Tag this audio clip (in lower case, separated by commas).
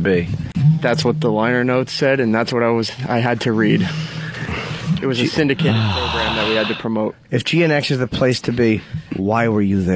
speech